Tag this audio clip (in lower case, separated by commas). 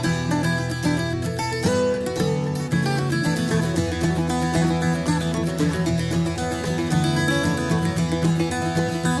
playing mandolin